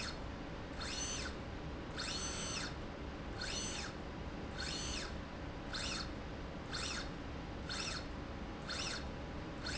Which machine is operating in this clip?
slide rail